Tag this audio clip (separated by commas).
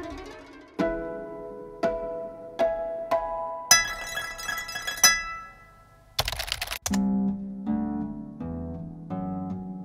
Music, Harp